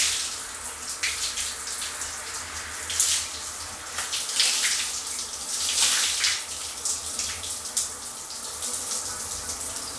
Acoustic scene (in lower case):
restroom